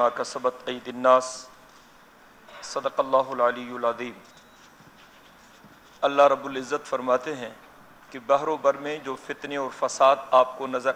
A man is giving a speech